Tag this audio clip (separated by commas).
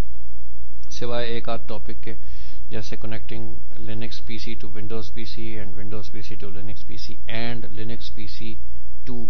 Speech